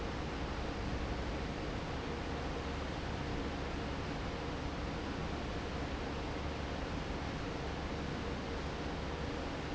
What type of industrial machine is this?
fan